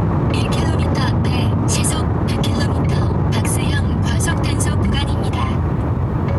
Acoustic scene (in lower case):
car